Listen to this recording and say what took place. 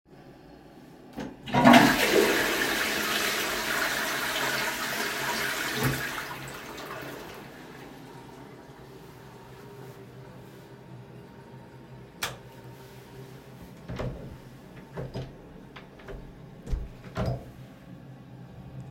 I flushed the toilet in the bathroom. Then I turned off the light before leaving. After that, I opened and closed the door.